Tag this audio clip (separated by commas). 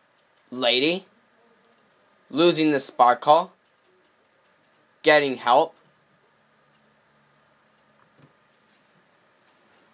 Speech